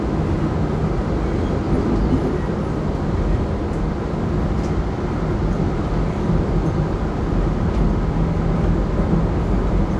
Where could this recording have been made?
on a subway train